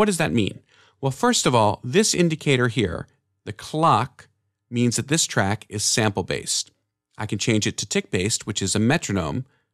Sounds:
speech

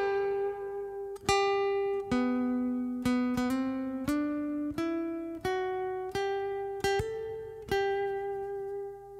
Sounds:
guitar
musical instrument
music
plucked string instrument

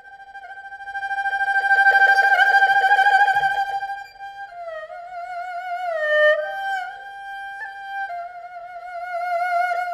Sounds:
playing erhu

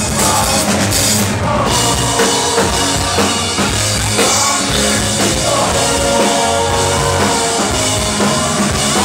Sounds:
music

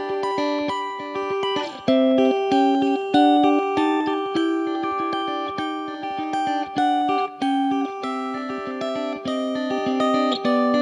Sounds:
musical instrument
playing acoustic guitar
acoustic guitar
music

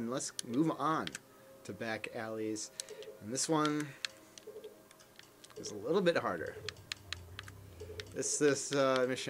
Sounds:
speech

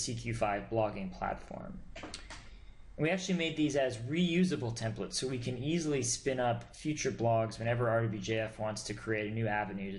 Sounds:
speech

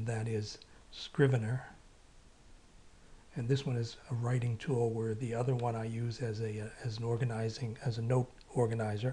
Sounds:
speech

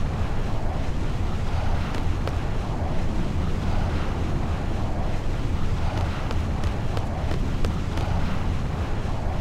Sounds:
eruption

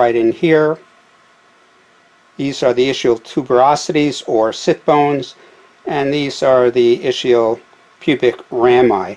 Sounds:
speech

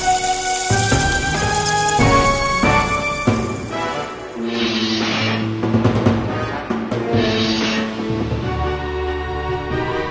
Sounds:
theme music

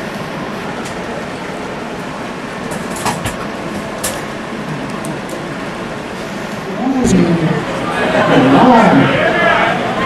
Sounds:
speech

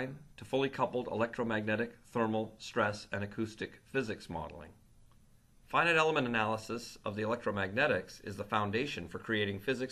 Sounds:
speech

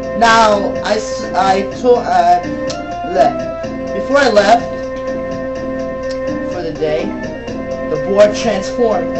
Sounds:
music
speech

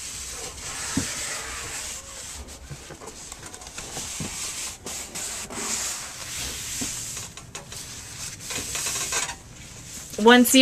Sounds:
rub

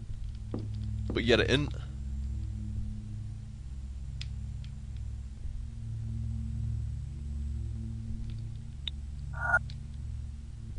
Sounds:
speech
inside a large room or hall

